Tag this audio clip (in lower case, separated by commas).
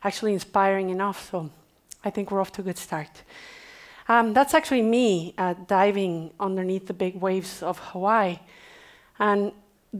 speech